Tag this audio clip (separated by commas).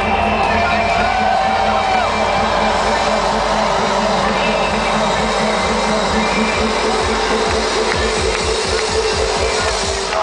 Music